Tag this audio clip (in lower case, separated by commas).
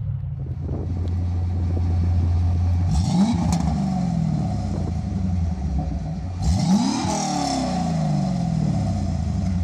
car, vehicle, light engine (high frequency), accelerating, motor vehicle (road)